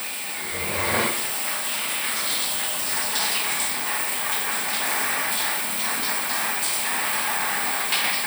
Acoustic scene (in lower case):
restroom